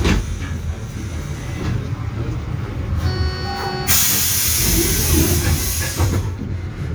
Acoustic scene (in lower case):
bus